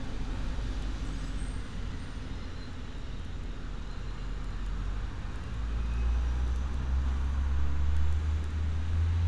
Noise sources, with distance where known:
large-sounding engine

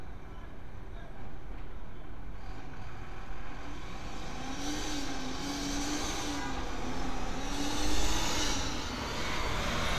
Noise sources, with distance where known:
large-sounding engine, near
car horn

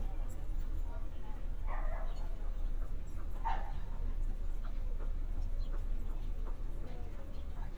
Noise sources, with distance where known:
person or small group talking
dog barking or whining, far

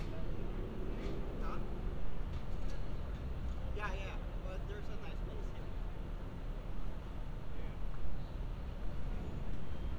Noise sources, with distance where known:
person or small group talking, near

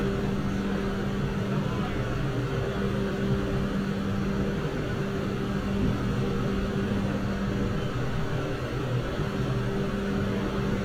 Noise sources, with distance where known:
engine of unclear size, near
unidentified human voice

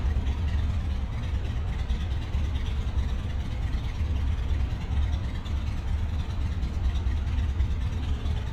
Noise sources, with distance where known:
engine of unclear size, near

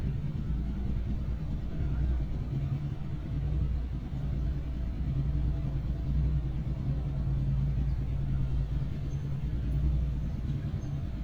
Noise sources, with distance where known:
engine of unclear size

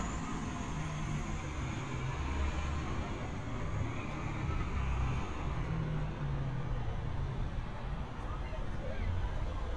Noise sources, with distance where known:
engine of unclear size, far

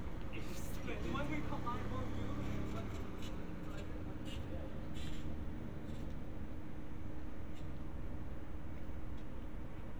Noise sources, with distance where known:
medium-sounding engine
person or small group talking, near

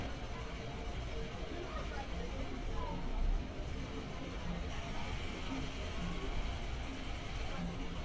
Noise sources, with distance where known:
engine of unclear size
person or small group talking

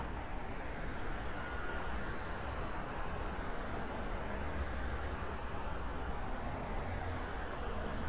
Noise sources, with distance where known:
engine of unclear size, far

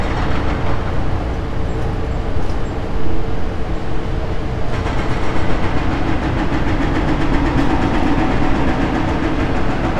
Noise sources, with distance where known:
hoe ram

